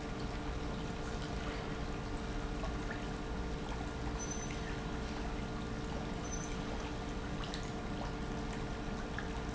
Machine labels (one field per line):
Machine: pump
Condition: normal